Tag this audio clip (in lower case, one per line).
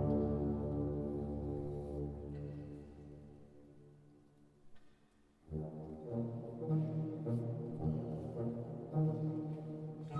brass instrument
music
classical music